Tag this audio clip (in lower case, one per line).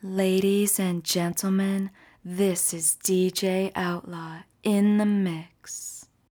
speech
human voice
woman speaking